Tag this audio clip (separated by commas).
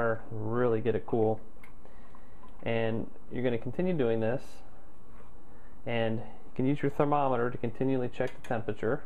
Speech